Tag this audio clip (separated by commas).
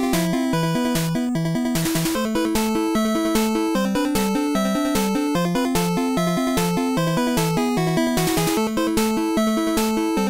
Music